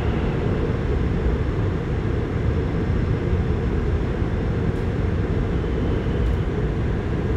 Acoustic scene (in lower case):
subway train